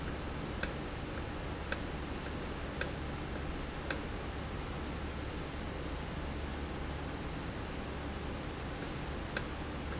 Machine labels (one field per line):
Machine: valve